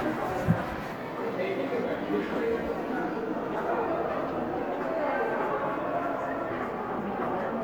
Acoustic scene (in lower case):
crowded indoor space